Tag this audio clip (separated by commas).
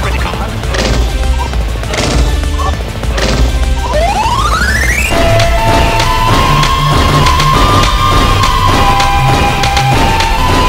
Speech, Music